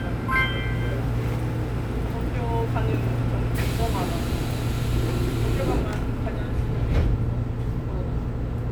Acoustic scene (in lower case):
subway train